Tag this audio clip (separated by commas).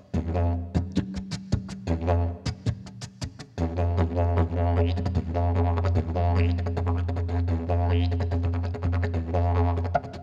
playing didgeridoo